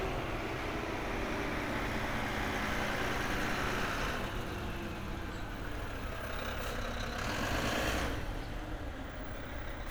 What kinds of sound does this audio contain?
large-sounding engine